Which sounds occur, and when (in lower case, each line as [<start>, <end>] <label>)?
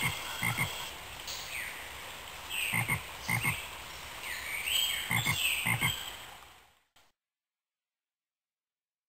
[0.00, 7.13] background noise
[4.17, 6.10] chirp
[5.61, 5.88] frog